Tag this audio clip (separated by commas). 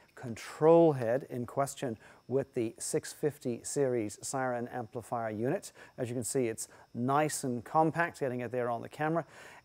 Speech